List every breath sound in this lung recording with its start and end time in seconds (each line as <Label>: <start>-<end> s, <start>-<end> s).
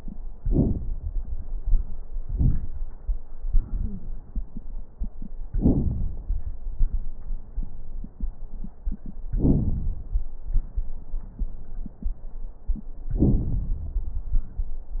Wheeze: 3.78-4.07 s